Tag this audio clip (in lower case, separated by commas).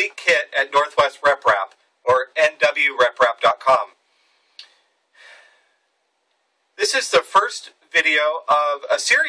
speech